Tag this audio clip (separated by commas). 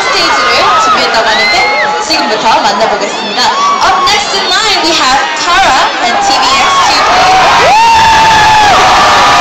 Speech